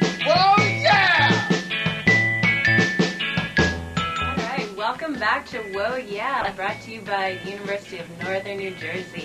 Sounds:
Speech, Music, Background music

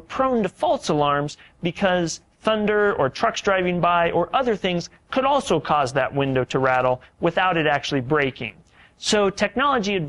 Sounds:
Speech

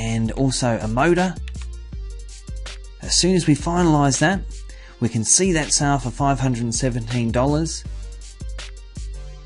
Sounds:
monologue

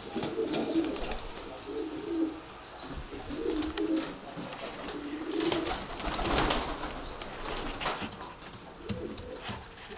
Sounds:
Pigeon, Bird

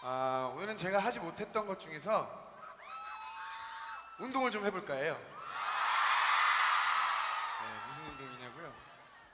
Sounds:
Speech

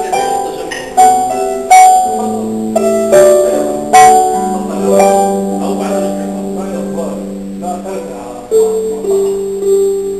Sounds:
Pizzicato, Harp

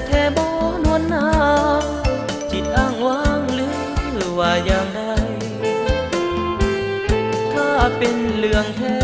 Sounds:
Music, Country

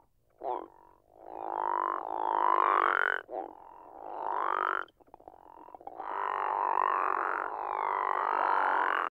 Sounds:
Frog

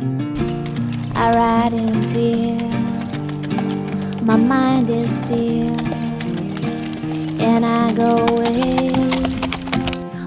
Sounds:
Music, Clip-clop, Animal, Horse

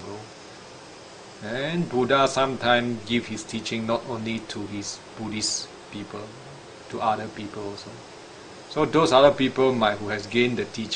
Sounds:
Speech

